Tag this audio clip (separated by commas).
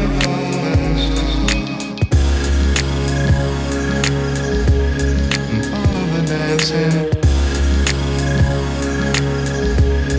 Music